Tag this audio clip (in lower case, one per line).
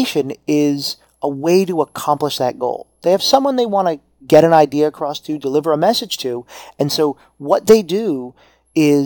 speech